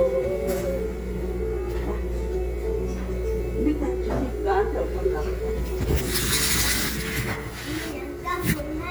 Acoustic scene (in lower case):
restaurant